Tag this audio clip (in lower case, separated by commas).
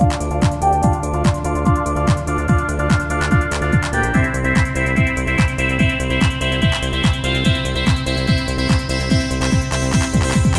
music